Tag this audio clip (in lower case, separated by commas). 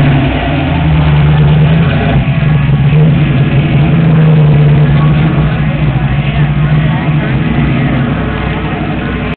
car, heavy engine (low frequency), accelerating, vehicle, speech